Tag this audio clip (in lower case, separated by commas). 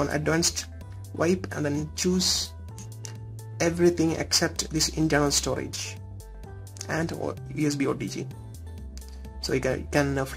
speech